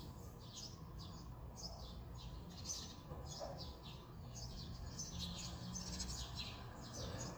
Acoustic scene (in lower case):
residential area